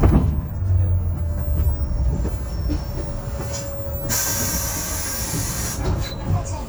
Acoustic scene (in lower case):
bus